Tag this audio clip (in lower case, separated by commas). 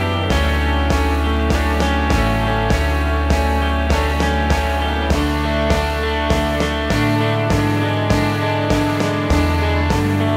music